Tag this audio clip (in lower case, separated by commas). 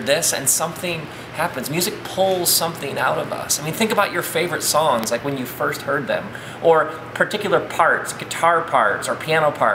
speech